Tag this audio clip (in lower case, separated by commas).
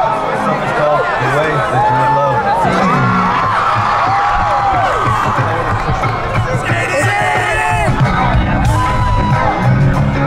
music, speech